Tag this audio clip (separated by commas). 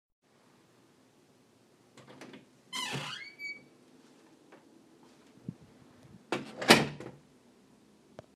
Squeak, Door, home sounds, Slam, Wood